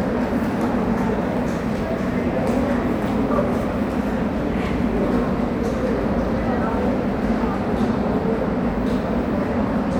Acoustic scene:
subway station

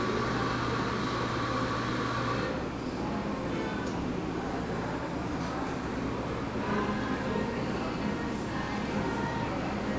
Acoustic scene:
cafe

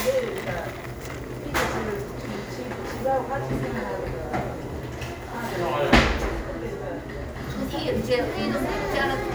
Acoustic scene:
cafe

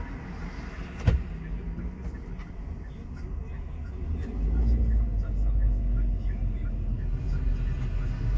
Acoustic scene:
car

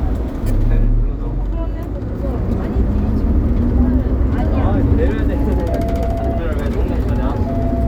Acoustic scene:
bus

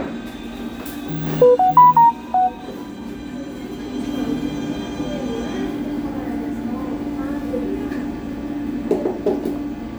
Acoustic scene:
cafe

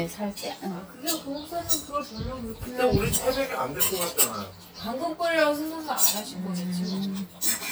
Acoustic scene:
restaurant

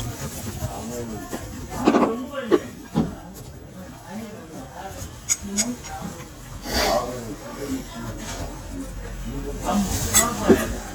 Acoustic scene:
restaurant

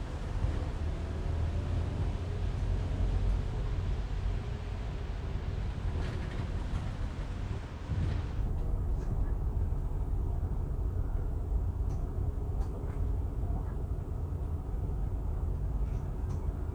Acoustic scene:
bus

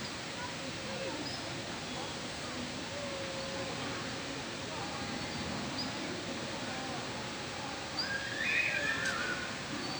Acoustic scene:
park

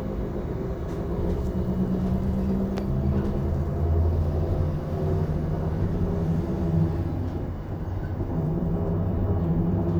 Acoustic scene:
bus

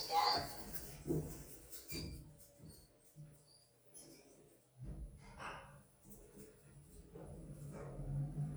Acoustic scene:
elevator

